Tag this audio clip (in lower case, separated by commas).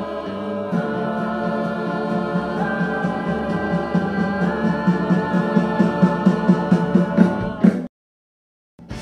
music, speech